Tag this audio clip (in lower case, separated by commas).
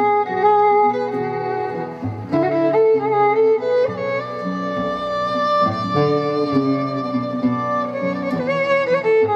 fiddle, musical instrument, music